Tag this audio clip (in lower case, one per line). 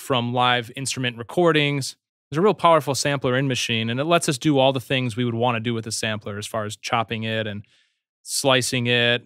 speech